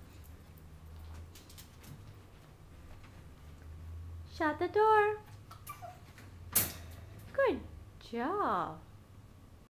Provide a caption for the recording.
A door is closed and a woman is speaking